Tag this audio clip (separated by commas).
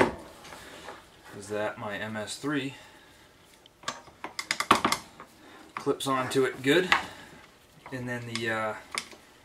inside a small room, Speech